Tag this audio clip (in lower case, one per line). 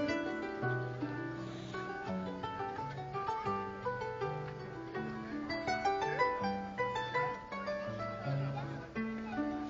playing harp